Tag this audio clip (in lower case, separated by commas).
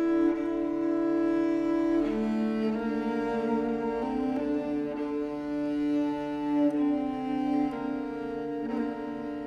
string section